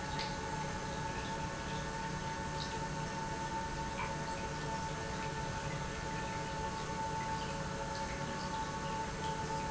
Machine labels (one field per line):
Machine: pump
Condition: normal